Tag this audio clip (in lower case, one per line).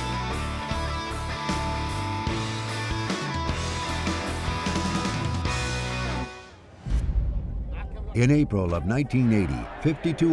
speech
music